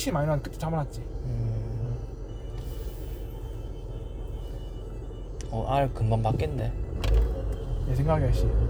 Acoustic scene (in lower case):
car